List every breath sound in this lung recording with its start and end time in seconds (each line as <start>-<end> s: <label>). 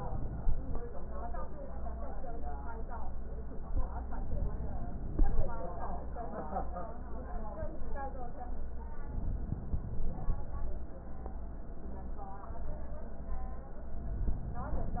4.05-5.55 s: inhalation
9.08-10.58 s: inhalation